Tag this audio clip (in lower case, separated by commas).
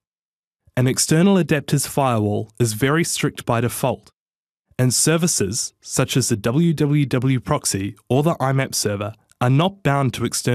speech, speech synthesizer